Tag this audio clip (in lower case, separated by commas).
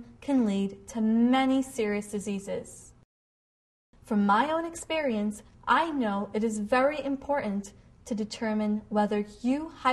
woman speaking, speech